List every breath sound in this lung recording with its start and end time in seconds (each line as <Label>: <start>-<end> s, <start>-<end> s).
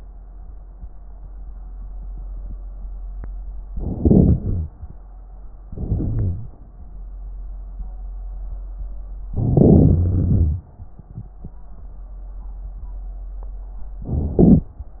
Inhalation: 3.72-4.72 s, 5.67-6.46 s, 9.33-10.05 s, 14.01-14.73 s
Exhalation: 10.05-10.71 s
Wheeze: 5.67-6.46 s